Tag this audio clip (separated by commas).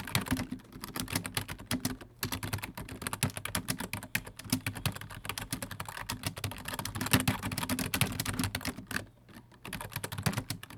Typing, home sounds, Computer keyboard